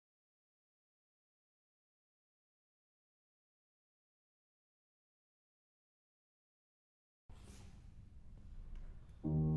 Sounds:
Classical music, Violin, Music

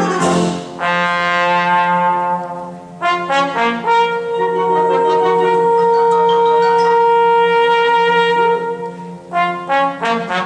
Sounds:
playing trombone

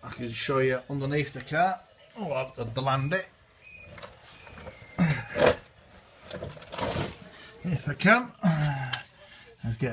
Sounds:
Speech

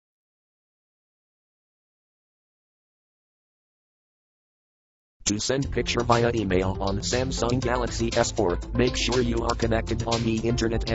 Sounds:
Music, Silence, inside a small room, Speech

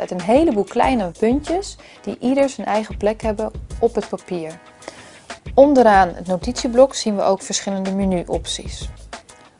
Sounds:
Speech, Music

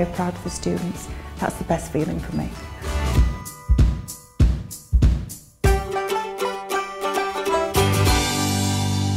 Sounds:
Banjo, Music, Speech

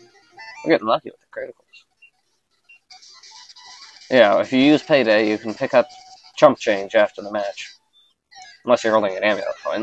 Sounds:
Speech

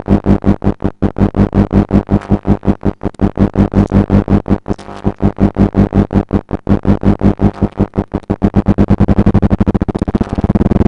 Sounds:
Synthesizer, Music

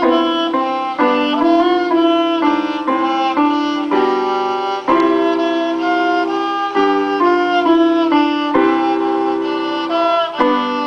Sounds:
Violin, Music, Musical instrument

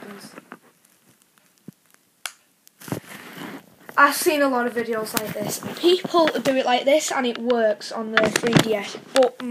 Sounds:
Speech

